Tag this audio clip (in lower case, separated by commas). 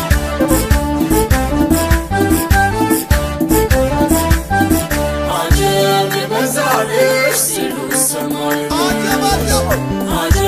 music, traditional music